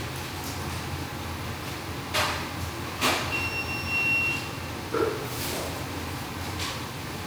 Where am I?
in a restaurant